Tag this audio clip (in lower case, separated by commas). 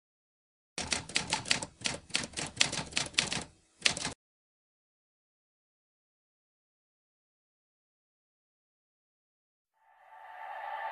typewriter